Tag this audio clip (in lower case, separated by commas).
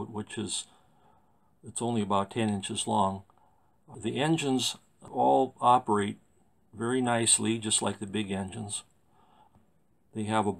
speech